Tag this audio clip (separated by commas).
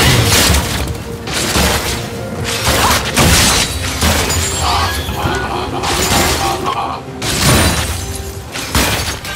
Music, Shatter, outside, rural or natural